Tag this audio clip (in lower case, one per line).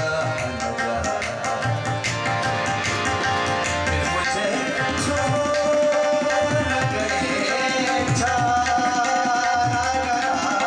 musical instrument
music
tabla